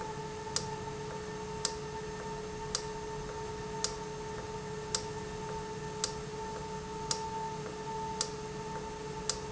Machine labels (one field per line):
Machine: valve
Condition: normal